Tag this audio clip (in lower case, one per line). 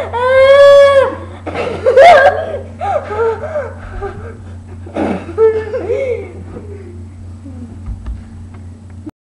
laughter